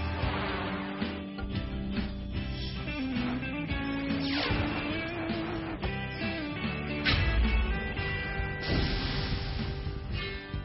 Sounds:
Music

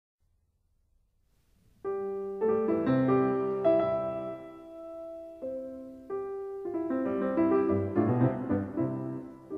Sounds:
Harpsichord, Piano

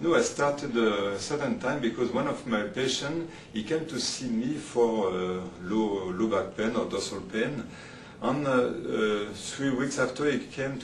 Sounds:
Speech

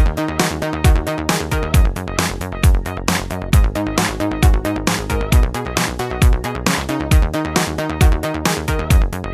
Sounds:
Music

